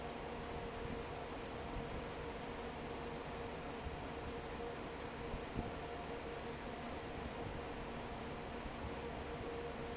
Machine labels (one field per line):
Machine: fan